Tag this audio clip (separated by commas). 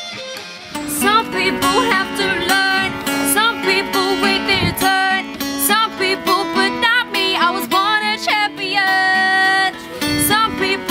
Music